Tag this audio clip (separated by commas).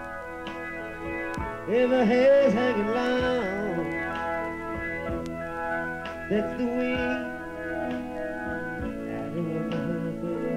Singing